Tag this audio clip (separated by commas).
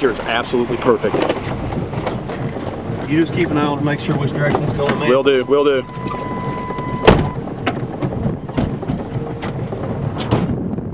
tornado roaring